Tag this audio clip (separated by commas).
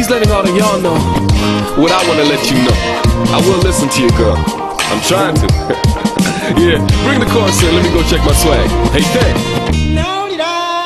Exciting music, Happy music, Music, Speech